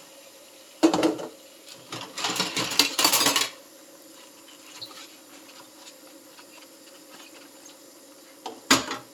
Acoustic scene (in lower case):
kitchen